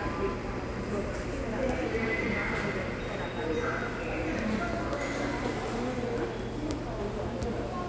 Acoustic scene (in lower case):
subway station